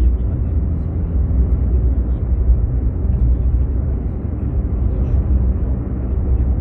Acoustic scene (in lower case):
car